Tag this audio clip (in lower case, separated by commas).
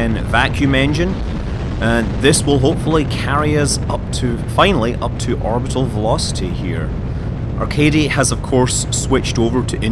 speech